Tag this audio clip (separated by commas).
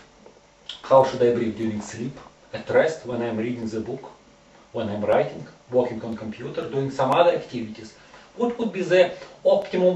Speech